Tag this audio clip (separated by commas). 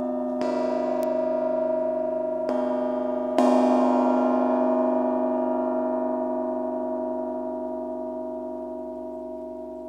playing gong